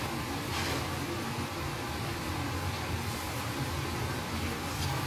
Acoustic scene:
restaurant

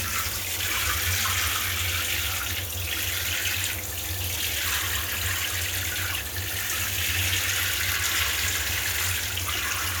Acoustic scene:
restroom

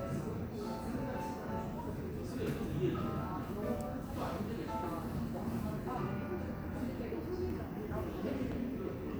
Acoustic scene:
cafe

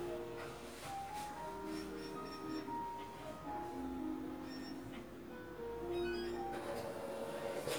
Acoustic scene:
crowded indoor space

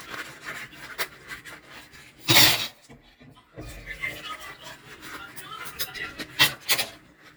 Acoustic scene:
kitchen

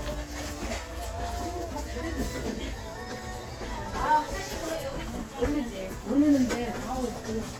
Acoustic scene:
crowded indoor space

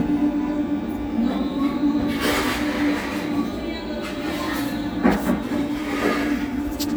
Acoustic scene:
cafe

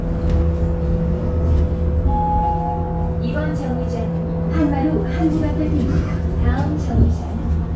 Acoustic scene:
bus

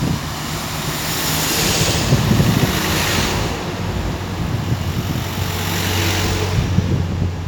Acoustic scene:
street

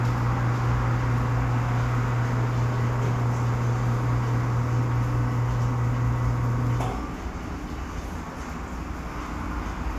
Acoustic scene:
cafe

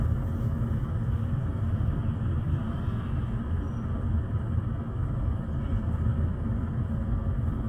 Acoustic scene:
bus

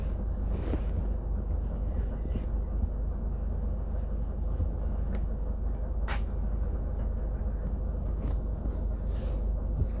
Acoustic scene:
bus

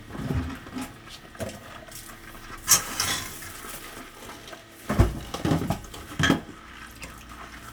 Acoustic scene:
kitchen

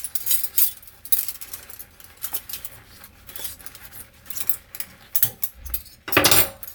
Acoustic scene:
kitchen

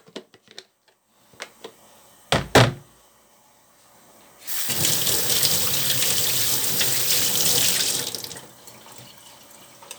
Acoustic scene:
kitchen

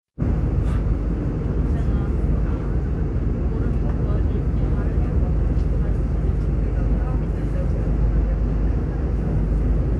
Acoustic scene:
subway train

